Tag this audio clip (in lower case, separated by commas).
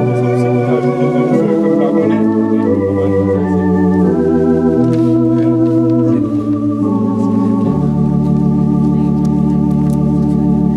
music, speech